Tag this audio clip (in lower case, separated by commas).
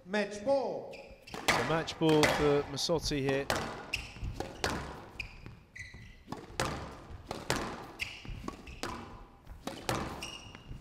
playing squash